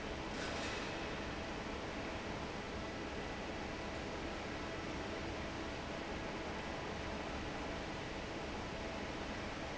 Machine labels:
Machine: fan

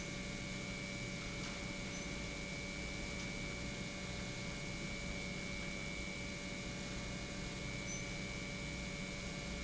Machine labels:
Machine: pump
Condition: normal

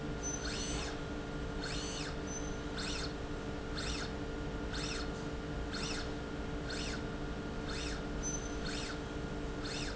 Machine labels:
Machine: slide rail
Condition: normal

